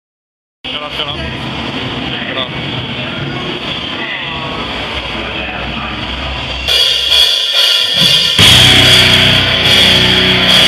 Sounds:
Speech, Rock music, Punk rock, Music

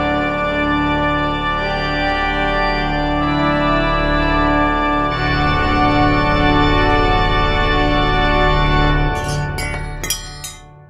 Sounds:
Organ, Hammond organ

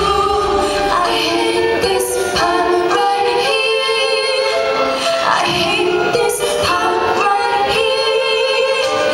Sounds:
Music, Female singing

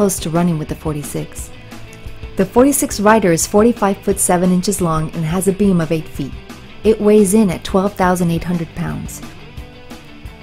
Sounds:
Music, Speech

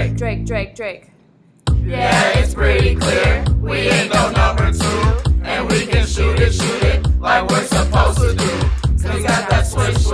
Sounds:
Music

